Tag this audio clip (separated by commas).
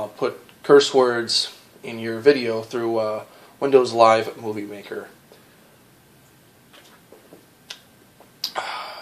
Speech